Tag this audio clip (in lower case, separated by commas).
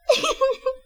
laughter, giggle, human voice